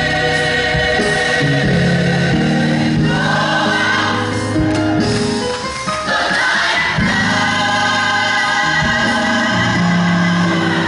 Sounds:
choir
music of latin america
gospel music
music
singing

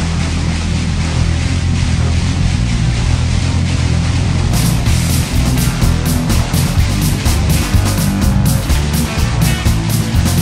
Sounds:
music

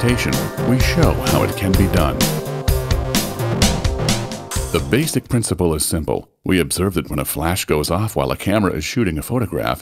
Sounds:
music
speech

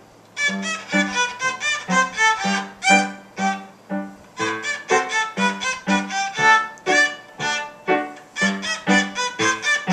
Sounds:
music
musical instrument
fiddle

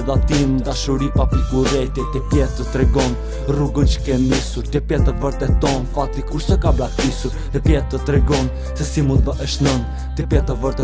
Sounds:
music

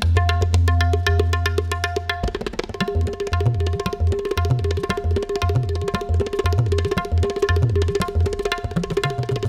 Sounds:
playing tabla

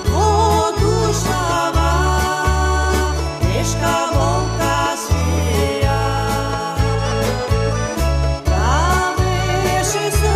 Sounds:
folk music
music
singing

